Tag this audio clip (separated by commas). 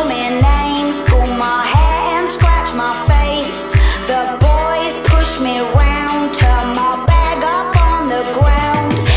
Music